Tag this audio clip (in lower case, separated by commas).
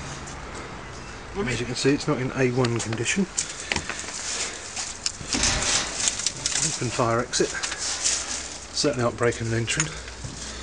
speech